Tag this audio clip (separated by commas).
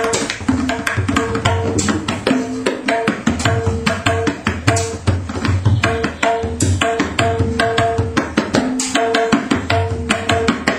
playing tabla